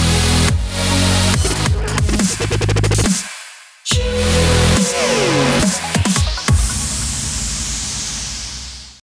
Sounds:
Dubstep, Electronic music, Music

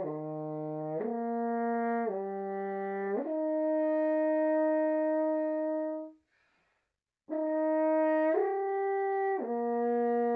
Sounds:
playing french horn

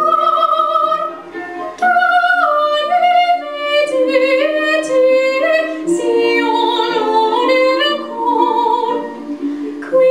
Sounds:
Music, Female singing

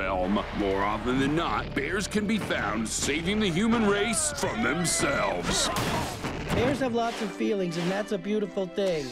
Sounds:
Speech, Music

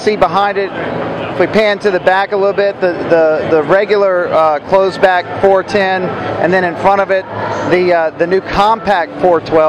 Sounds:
Speech

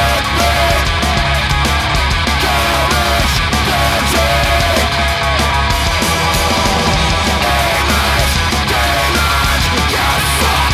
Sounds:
Music, Funk

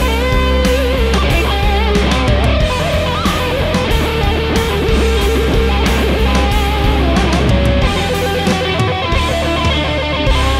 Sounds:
Electric guitar, Plucked string instrument, Guitar, Music, Heavy metal, Musical instrument

